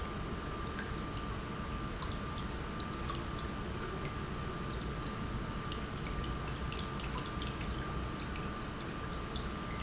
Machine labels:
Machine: pump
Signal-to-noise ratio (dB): -6 dB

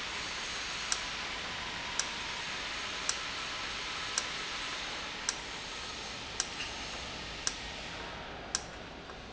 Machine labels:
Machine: valve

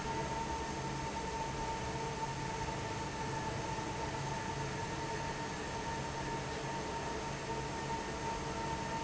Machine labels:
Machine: fan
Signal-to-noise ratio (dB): -6 dB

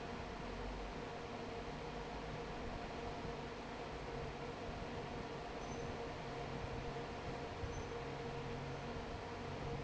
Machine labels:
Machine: fan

